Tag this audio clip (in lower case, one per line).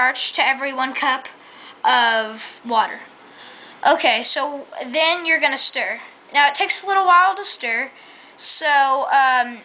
speech